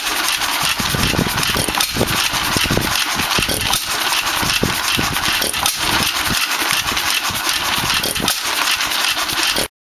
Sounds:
medium engine (mid frequency)
idling
engine

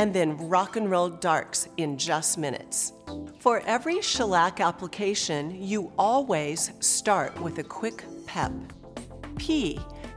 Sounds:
speech
music

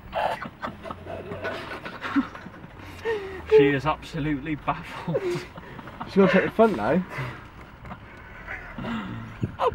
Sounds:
speech

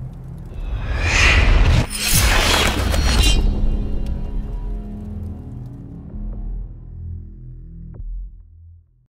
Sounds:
music

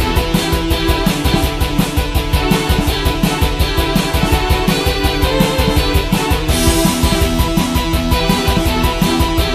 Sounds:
video game music

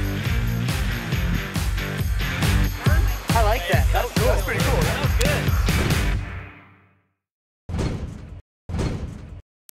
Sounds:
speech
music

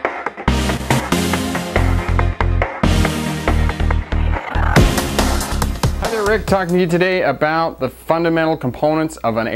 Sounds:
speech
music

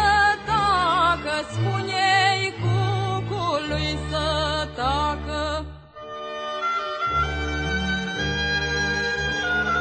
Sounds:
music

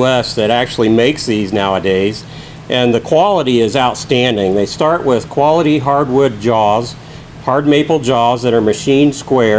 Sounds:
speech

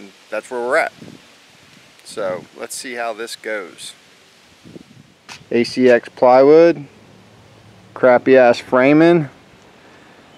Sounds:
outside, rural or natural
speech

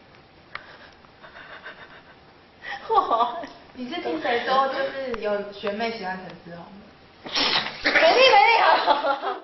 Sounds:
pets
animal
speech

